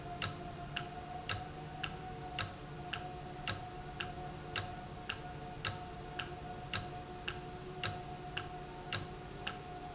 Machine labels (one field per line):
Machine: valve